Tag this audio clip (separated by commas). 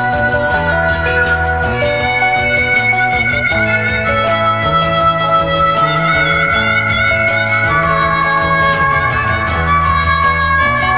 Music, Psychedelic rock